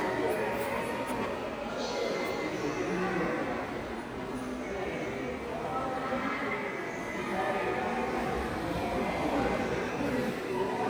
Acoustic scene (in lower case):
subway station